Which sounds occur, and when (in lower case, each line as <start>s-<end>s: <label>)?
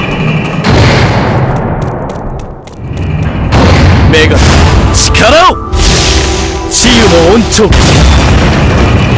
0.0s-2.5s: sound effect
0.0s-9.1s: video game sound
0.1s-0.5s: run
1.5s-2.2s: run
2.4s-3.3s: run
2.8s-9.1s: sound effect
4.1s-4.5s: man speaking
5.0s-5.5s: man speaking
6.7s-7.7s: man speaking